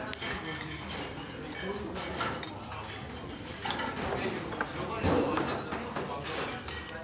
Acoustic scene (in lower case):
restaurant